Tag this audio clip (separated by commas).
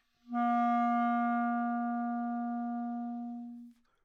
Music, Musical instrument, woodwind instrument